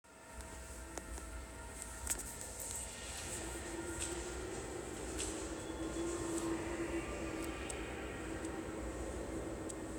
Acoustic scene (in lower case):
subway station